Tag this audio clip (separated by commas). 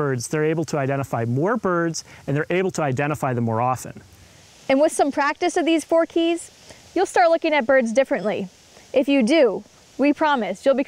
Speech